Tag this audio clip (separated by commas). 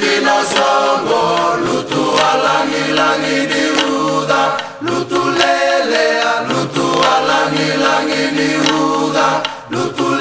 Chant